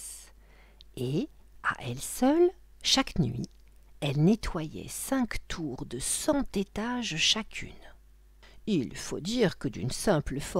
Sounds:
speech

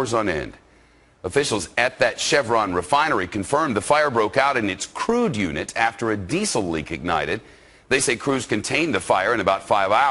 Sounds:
speech

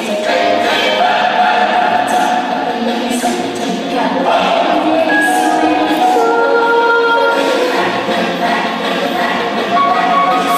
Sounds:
music
inside a large room or hall

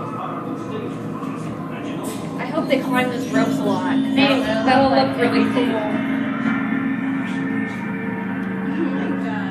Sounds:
speech

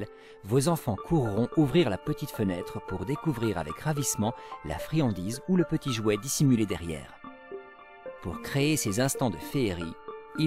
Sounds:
music
speech

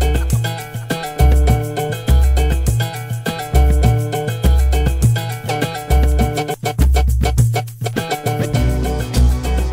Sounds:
music

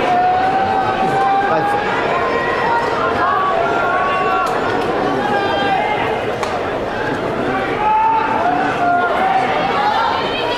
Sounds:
people booing

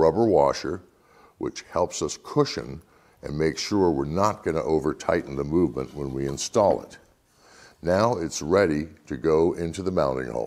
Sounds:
speech

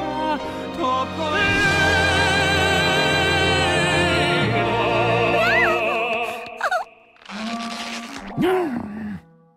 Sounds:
music
speech

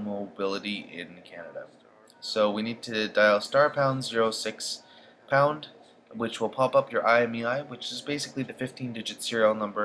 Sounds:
speech

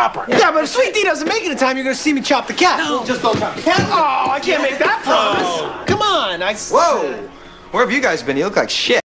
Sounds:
speech
music

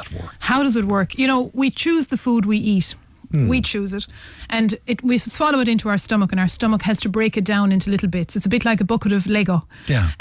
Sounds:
speech

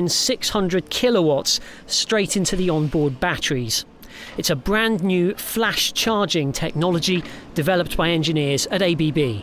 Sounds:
vehicle
speech

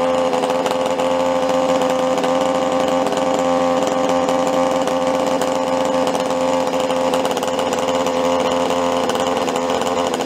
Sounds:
hedge trimmer running

